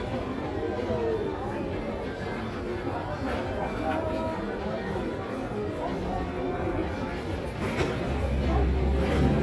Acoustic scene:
crowded indoor space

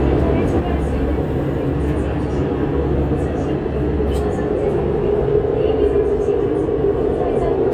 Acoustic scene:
subway train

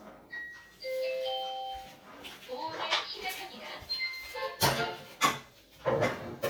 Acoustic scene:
kitchen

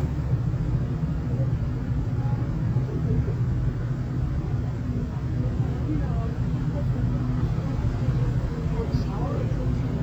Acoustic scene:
street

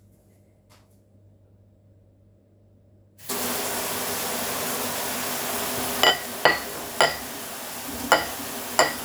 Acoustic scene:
kitchen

